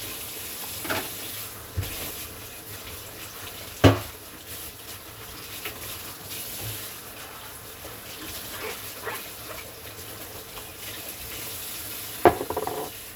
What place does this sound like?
kitchen